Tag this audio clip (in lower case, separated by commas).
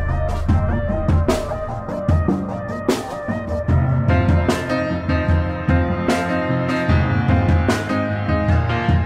music